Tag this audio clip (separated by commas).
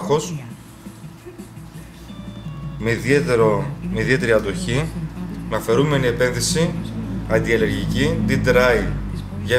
Music, Speech